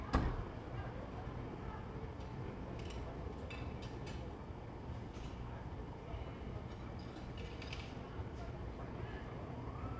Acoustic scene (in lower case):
residential area